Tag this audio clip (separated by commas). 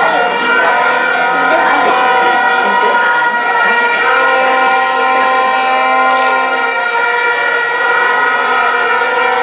Speech, outside, urban or man-made